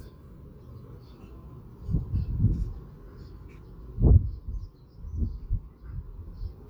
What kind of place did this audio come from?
park